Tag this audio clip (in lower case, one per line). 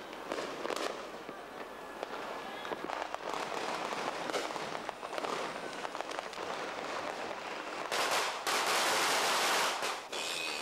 lighting firecrackers